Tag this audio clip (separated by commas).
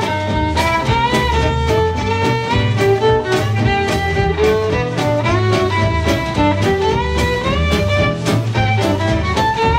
Music